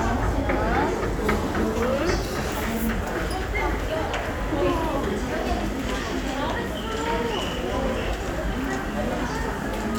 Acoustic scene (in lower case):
crowded indoor space